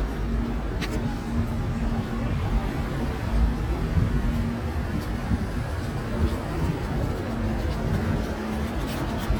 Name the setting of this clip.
street